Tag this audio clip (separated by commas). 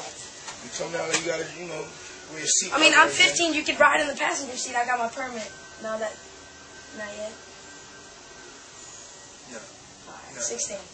Speech